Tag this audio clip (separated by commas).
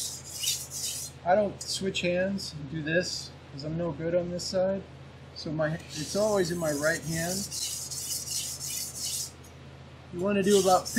sharpen knife